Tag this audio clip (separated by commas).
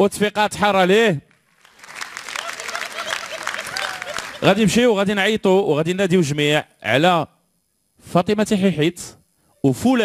Speech